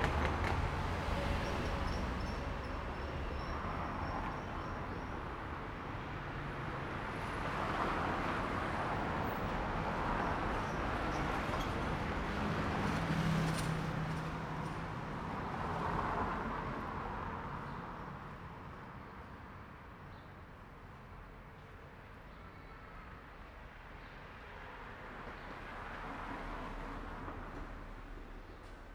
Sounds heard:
car engine accelerating
truck engine accelerating
car
people talking
motorcycle
truck
car wheels rolling
motorcycle engine accelerating

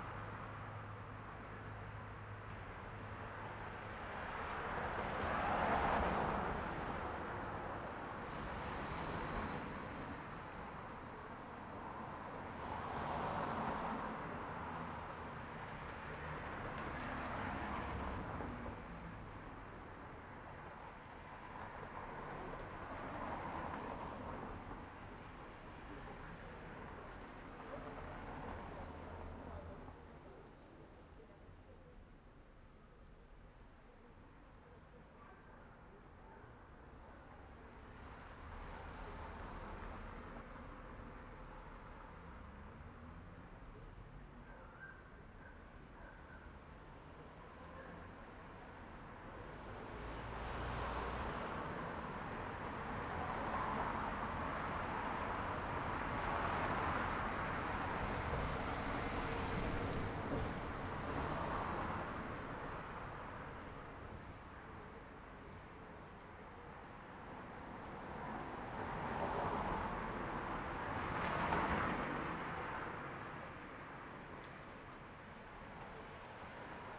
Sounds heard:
bus wheels rolling
bus compressor
people talking
bus brakes
car
bus
car engine accelerating
car wheels rolling

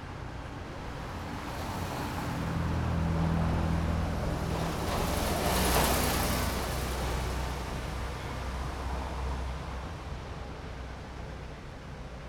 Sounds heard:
bus engine accelerating
car wheels rolling
bus
car
bus wheels rolling
car engine idling
car engine accelerating

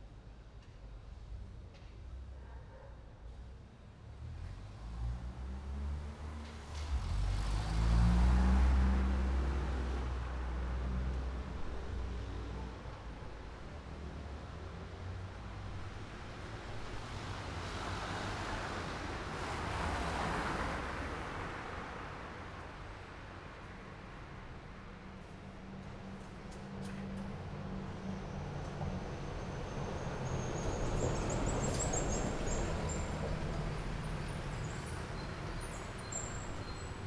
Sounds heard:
car engine accelerating
bus compressor
motorcycle engine accelerating
bus wheels rolling
motorcycle
car
bus brakes
bus
car wheels rolling

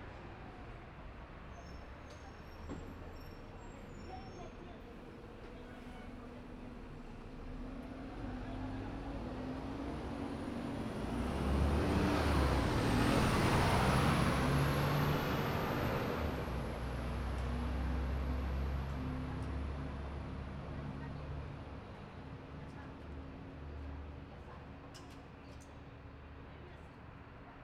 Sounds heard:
bus engine idling
people talking
bus compressor
bus engine accelerating
bus brakes
bus

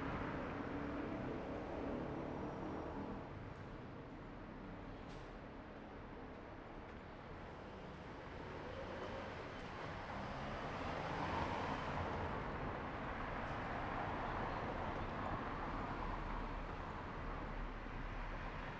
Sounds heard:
car wheels rolling
car engine accelerating
motorcycle engine accelerating
car
motorcycle

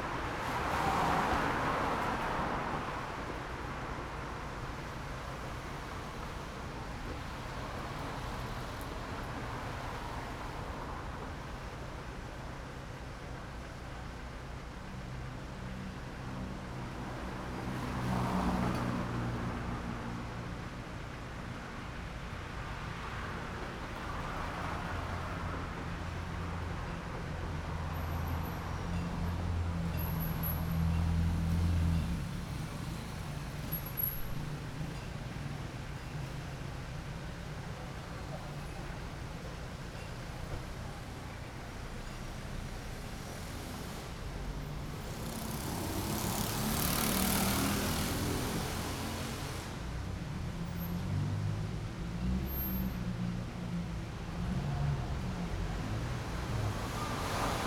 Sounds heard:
motorcycle
car engine accelerating
motorcycle engine idling
car engine idling
car
motorcycle engine accelerating
car wheels rolling

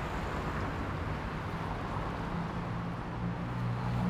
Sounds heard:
car engine accelerating
car
car wheels rolling

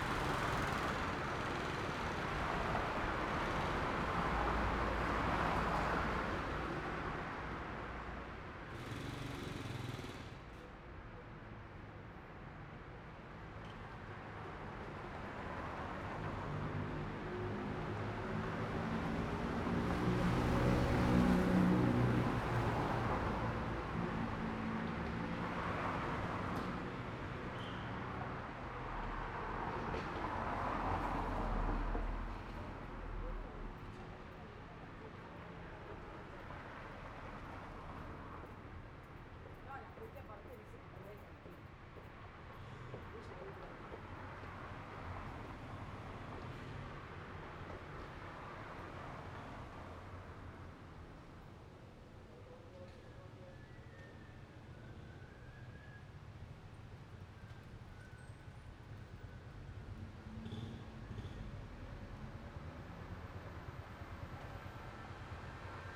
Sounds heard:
car
motorcycle
motorcycle engine accelerating
car wheels rolling
people talking

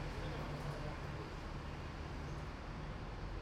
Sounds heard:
people talking

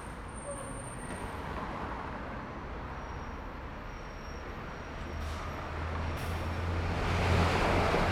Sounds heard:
truck
car wheels rolling
bus compressor
bus
bus brakes
car

